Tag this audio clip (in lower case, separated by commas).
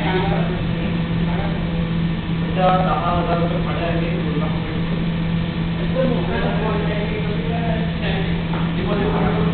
speech